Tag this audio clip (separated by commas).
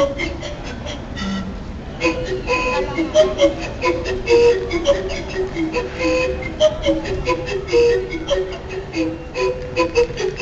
Music